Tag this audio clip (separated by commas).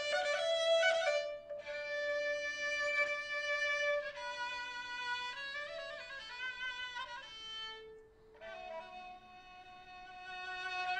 Musical instrument, Classical music, Music, Bowed string instrument